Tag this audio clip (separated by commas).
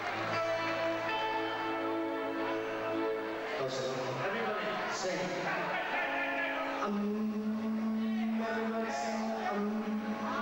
Music, Speech